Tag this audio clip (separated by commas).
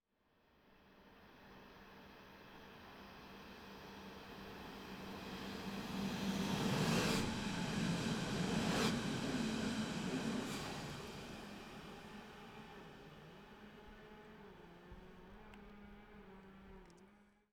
Vehicle, Rail transport, Train